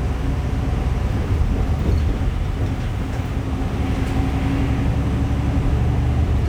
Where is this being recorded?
on a bus